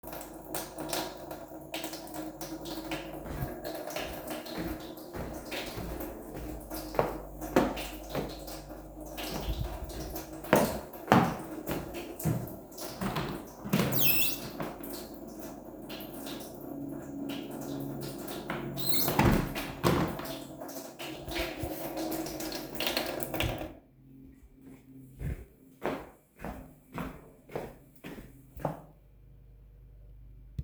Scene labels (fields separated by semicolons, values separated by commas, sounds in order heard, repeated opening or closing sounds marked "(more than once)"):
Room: kitchen; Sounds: running water, footsteps, window (more than once)